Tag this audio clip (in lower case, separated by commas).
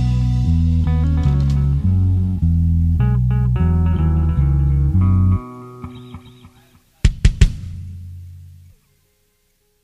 bass guitar, music, drum and bass